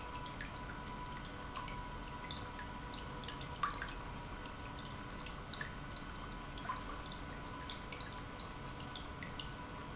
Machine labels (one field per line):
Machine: pump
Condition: normal